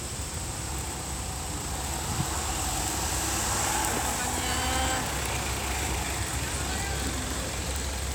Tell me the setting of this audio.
street